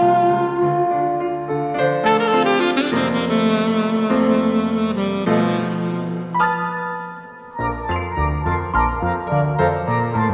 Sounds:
Music

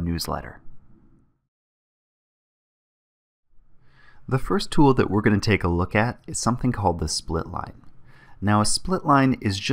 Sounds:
Speech

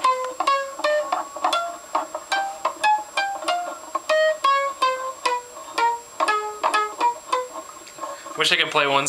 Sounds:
Music, Musical instrument, Speech, Plucked string instrument, Guitar

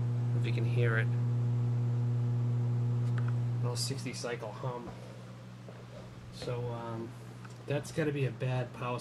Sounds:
Speech

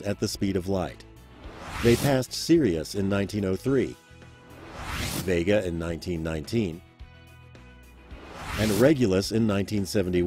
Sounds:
Speech, Music

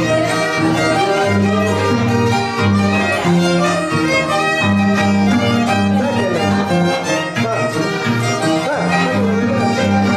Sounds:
Speech, Musical instrument, fiddle, Music

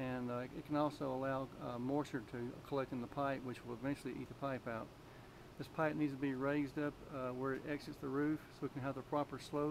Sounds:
Speech

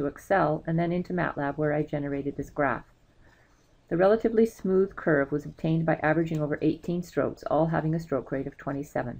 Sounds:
Speech

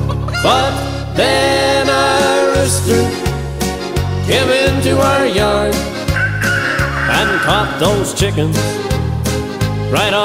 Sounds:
Music

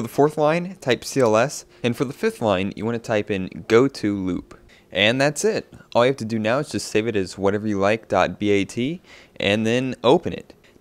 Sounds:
Speech

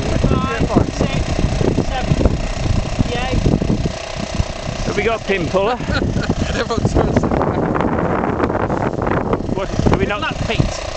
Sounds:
Speech

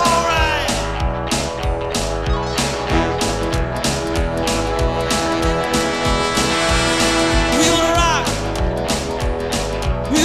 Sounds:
Music

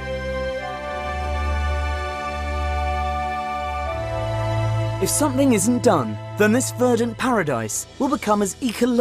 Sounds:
Background music

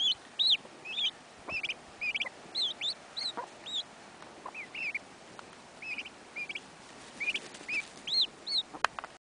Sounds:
Bird

